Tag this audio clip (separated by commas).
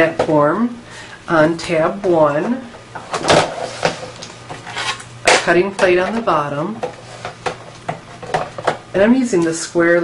Speech